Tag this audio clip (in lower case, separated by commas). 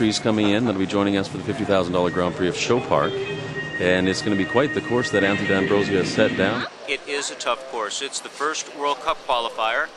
speech, music